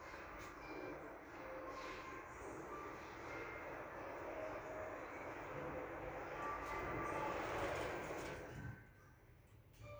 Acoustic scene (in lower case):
elevator